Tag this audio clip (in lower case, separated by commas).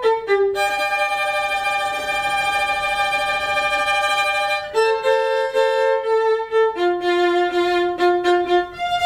music, fiddle, musical instrument